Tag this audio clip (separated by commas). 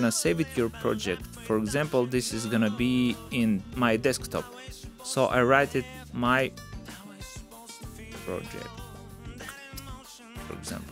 Music, Speech